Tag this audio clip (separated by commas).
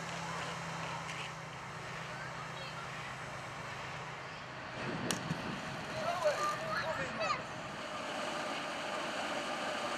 Speech